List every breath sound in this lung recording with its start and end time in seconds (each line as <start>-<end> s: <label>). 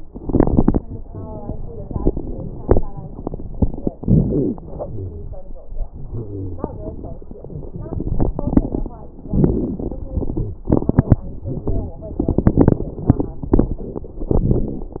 0.02-0.78 s: inhalation
0.02-0.78 s: crackles
4.04-4.56 s: inhalation
4.04-4.56 s: crackles
4.62-5.30 s: exhalation
4.90-5.36 s: wheeze
6.09-6.75 s: wheeze
7.85-8.94 s: inhalation
7.85-8.94 s: crackles
9.27-9.99 s: exhalation
9.27-9.99 s: crackles
11.42-12.00 s: wheeze
14.24-15.00 s: inhalation
14.24-15.00 s: crackles